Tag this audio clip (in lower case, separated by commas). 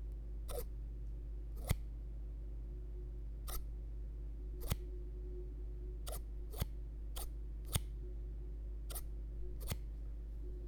home sounds, scissors